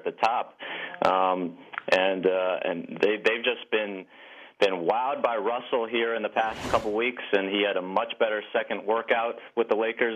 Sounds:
Speech

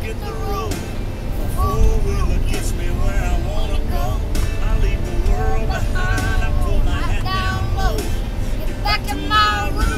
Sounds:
Child singing, Male singing, Music

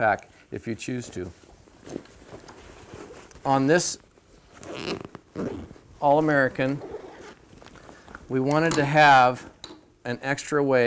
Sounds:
Speech, inside a small room

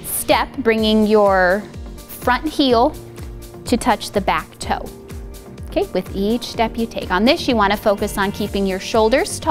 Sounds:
Music, Speech

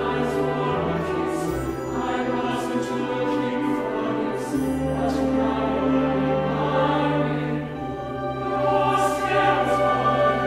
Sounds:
Choir, Orchestra, Music

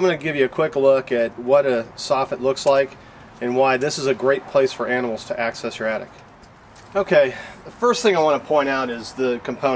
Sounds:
Speech

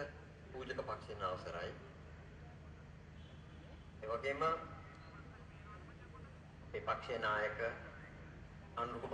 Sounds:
monologue, Speech, Male speech

